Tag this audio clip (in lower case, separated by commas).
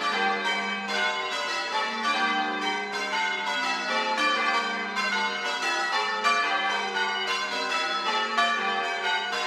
church bell ringing